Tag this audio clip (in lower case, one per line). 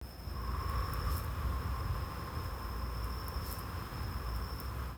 wind